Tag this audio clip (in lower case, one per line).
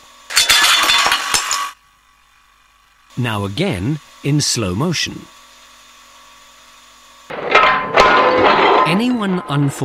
tools
power tool